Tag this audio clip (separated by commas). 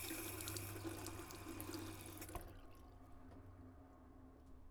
faucet, home sounds